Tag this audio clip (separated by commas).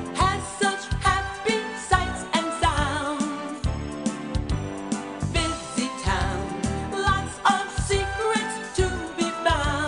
Music